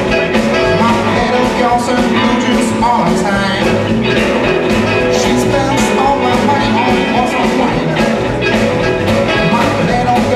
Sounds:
blues
music

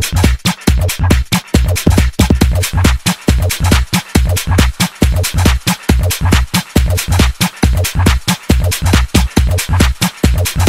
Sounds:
electronic music
music
trance music
techno

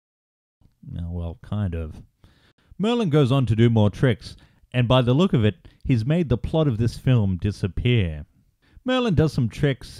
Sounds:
speech

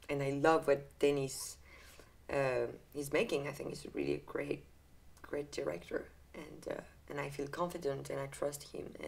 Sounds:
speech

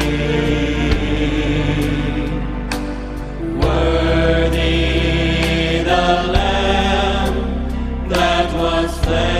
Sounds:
singing

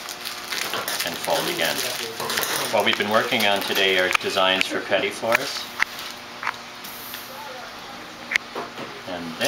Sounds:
speech

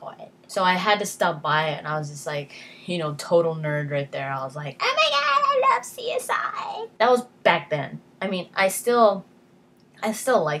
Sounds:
speech

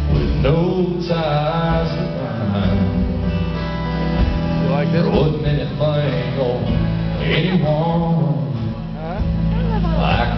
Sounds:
music
speech

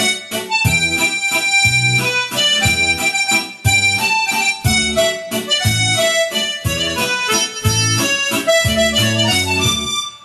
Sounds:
music

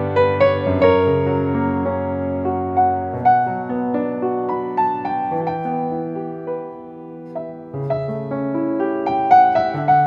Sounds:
music

